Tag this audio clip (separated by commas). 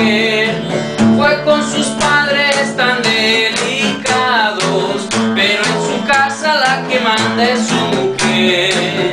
Musical instrument, Music